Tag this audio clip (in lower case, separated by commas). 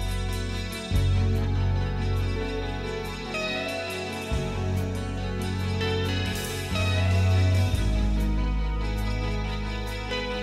music, happy music